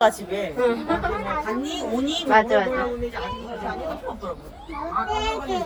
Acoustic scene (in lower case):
park